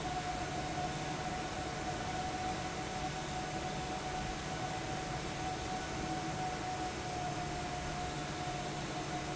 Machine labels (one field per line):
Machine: fan